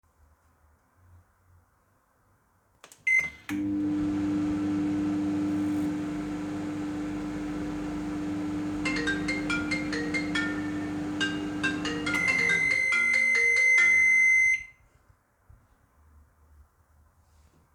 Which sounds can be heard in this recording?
microwave, phone ringing